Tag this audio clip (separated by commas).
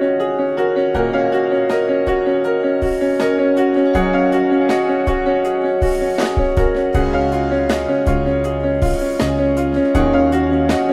Music